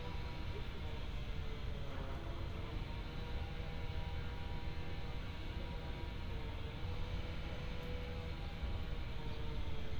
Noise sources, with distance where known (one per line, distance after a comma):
unidentified powered saw, far